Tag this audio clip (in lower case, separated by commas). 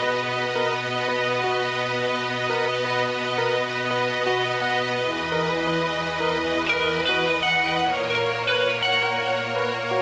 music